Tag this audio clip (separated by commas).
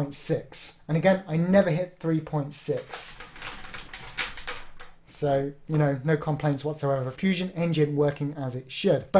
inside a small room, Speech